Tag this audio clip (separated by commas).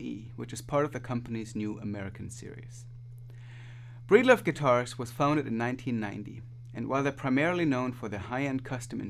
Speech